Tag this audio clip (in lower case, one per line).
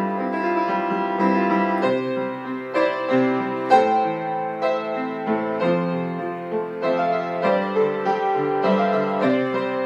music